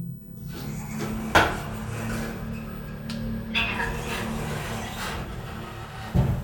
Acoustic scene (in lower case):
elevator